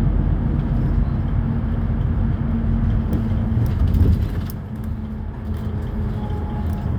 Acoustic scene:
bus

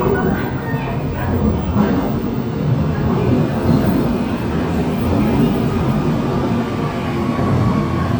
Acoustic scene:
subway station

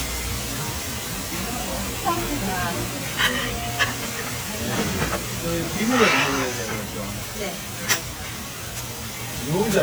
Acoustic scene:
restaurant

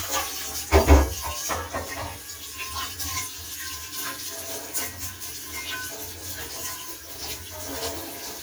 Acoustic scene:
kitchen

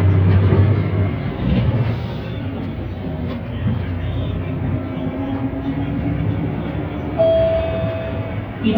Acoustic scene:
bus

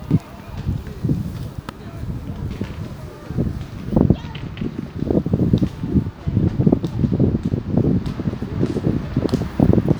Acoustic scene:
residential area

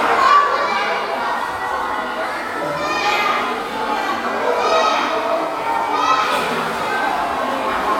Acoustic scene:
crowded indoor space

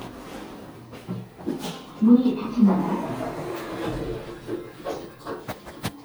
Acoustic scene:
elevator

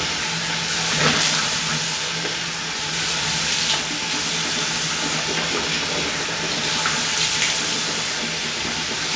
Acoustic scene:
restroom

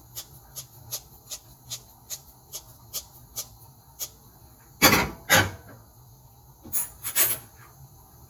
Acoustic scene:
kitchen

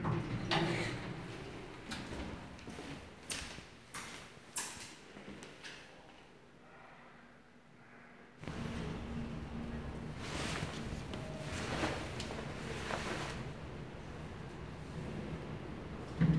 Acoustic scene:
elevator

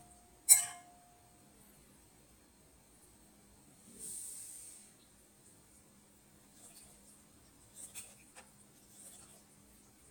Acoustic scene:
kitchen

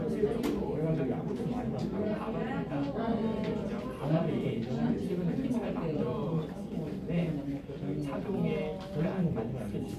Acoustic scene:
crowded indoor space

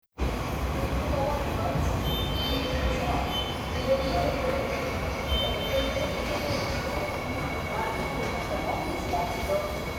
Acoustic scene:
subway station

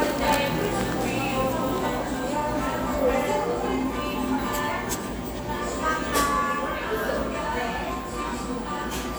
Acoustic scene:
cafe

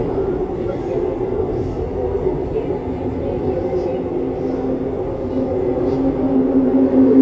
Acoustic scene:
subway train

